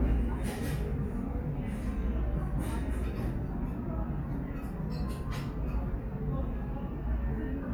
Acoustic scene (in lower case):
restaurant